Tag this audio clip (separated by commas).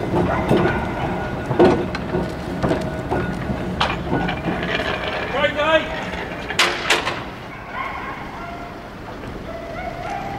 Speech, Vehicle